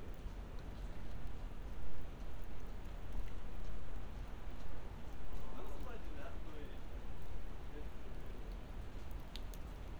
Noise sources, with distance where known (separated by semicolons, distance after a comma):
person or small group talking, near